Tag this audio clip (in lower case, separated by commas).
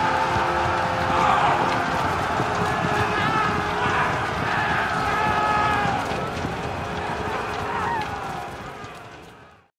music